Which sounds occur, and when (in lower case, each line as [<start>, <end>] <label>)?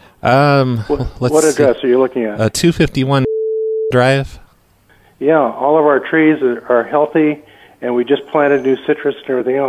[0.21, 9.65] conversation
[3.24, 3.88] busy signal
[3.88, 9.65] background noise
[7.42, 7.76] breathing
[7.81, 9.65] male speech